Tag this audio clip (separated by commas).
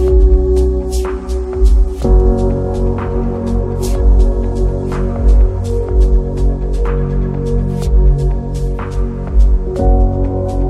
Electronica, Music